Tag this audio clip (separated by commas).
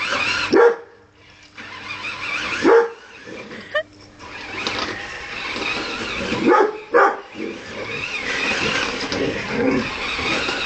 Dog, Animal, outside, urban or man-made, pets, canids